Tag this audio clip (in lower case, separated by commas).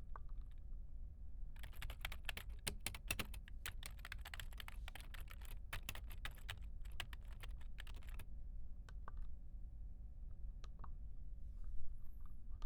home sounds, typing